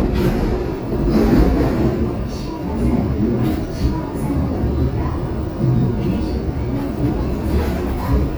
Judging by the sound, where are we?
on a subway train